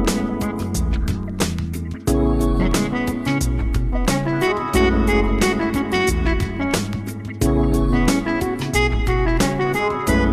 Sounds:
Soundtrack music, Jazz, Music, Independent music

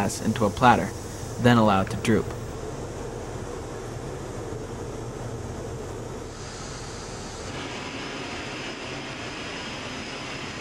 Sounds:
Speech

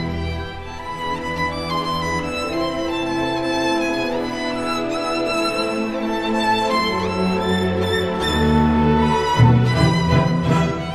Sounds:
Musical instrument, Violin, Music

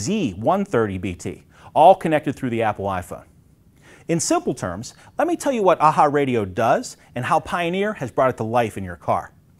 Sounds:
Speech

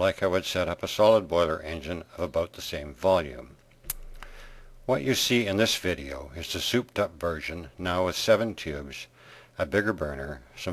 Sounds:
Speech

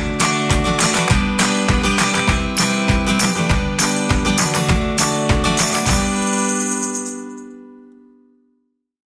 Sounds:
Music, Soundtrack music, Jazz

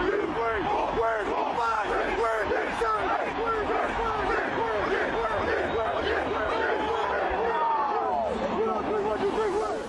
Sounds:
Speech

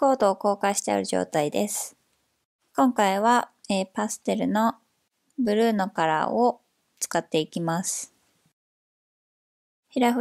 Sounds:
Speech

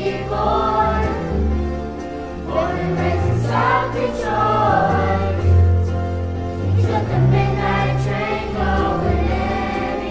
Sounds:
Choir, Music, Vocal music

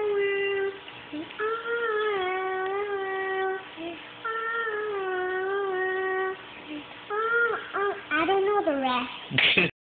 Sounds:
Child singing, Speech

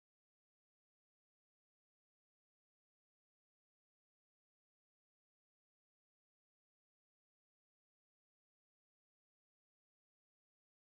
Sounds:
Jingle

